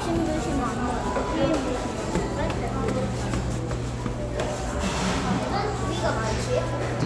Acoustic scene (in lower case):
cafe